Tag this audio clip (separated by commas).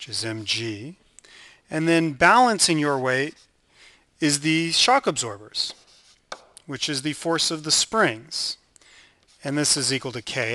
Speech